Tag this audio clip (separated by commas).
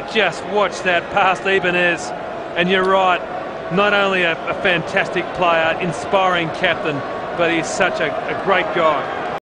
Speech